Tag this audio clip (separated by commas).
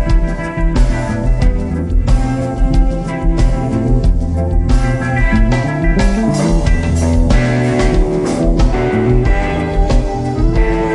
Music, Blues